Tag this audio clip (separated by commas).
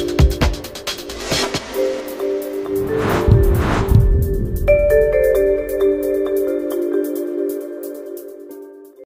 Music